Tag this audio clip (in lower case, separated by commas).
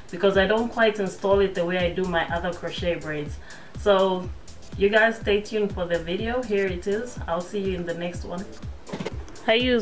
music, speech